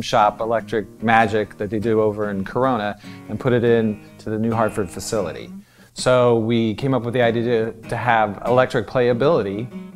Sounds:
speech
music

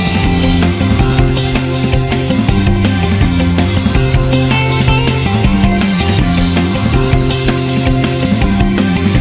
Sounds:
music

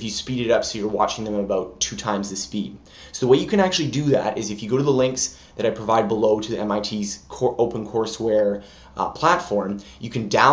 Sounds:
speech

